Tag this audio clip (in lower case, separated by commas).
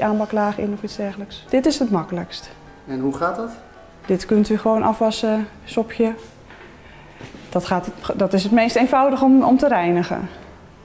speech, music